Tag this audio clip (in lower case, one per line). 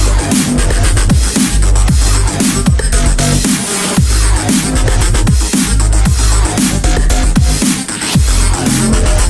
dubstep
music